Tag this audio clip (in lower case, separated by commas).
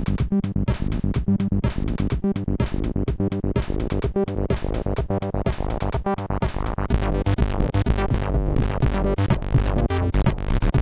cacophony